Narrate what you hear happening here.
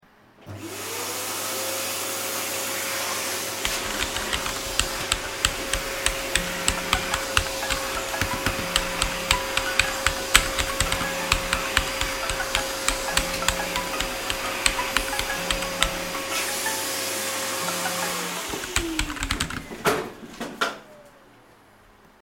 My roommate was vacuuming while I was typing at my desk, then my phone started ringing.